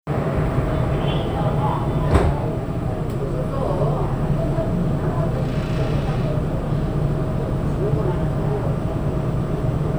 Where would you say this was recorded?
on a subway train